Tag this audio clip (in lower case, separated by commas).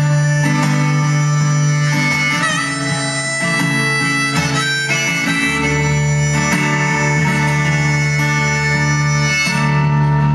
music